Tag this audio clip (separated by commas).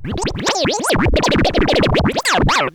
Scratching (performance technique), Musical instrument, Music